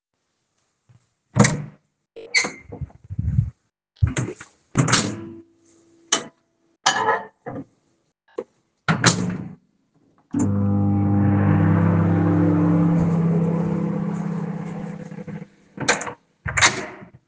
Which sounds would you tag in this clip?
door, microwave, cutlery and dishes